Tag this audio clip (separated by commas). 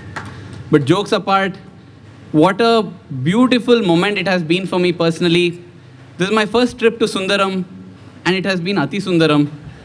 man speaking, Speech, Narration